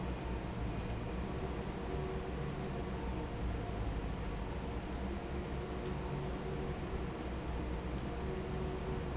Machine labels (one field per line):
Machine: fan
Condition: normal